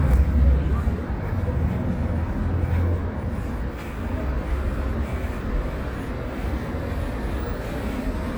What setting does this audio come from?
residential area